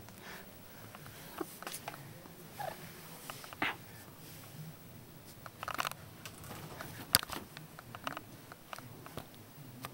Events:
0.0s-0.1s: clicking
0.0s-4.8s: male speech
0.0s-9.9s: background noise
0.0s-9.9s: television
0.2s-0.4s: dog
0.9s-1.1s: generic impact sounds
1.3s-1.4s: generic impact sounds
1.6s-2.0s: generic impact sounds
2.5s-2.8s: dog
3.2s-3.5s: generic impact sounds
3.6s-3.8s: dog
5.2s-5.5s: generic impact sounds
5.6s-5.9s: generic impact sounds
6.2s-6.3s: generic impact sounds
6.5s-7.0s: generic impact sounds
7.1s-7.4s: generic impact sounds
7.5s-8.3s: male speech
7.5s-7.6s: generic impact sounds
7.7s-8.3s: generic impact sounds
8.5s-8.9s: generic impact sounds
8.7s-9.3s: male speech
9.0s-9.3s: generic impact sounds
9.3s-9.4s: clicking
9.5s-9.9s: male speech
9.7s-9.9s: generic impact sounds

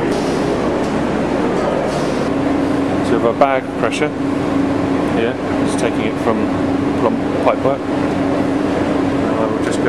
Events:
0.0s-9.8s: mechanisms
0.1s-0.5s: surface contact
0.8s-0.9s: generic impact sounds
1.5s-1.6s: generic impact sounds
1.9s-2.3s: surface contact
3.0s-4.1s: male speech
5.1s-5.3s: male speech
5.6s-6.3s: male speech
6.9s-7.1s: male speech
7.4s-7.7s: male speech
9.3s-9.8s: male speech

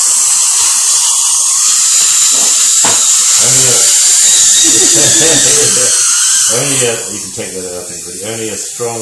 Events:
0.0s-9.0s: dental drill
4.6s-5.9s: laughter

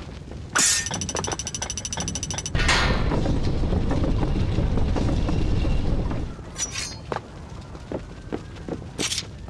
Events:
0.0s-0.5s: fire
0.0s-9.4s: video game sound
0.5s-0.9s: sound effect
0.8s-2.5s: gears
2.5s-3.0s: sound effect
2.6s-9.4s: fire
2.9s-6.3s: mechanisms
6.5s-7.0s: sound effect
7.1s-7.2s: footsteps
7.9s-8.0s: footsteps
8.3s-8.4s: footsteps
8.7s-8.8s: footsteps
8.9s-9.1s: footsteps
8.9s-9.3s: sound effect

